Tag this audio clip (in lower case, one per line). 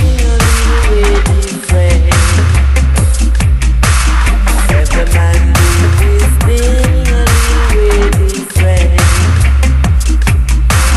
dubstep
music